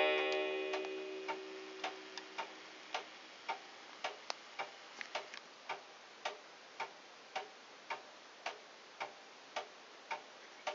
A clock is ticking then it chimes once